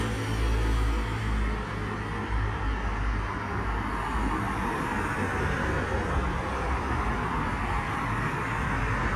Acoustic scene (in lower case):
street